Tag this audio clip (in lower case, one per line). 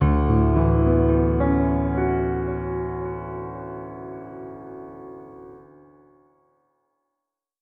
musical instrument
music
piano
keyboard (musical)